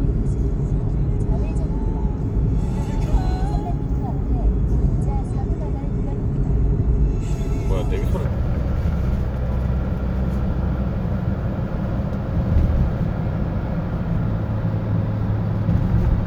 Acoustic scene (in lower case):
car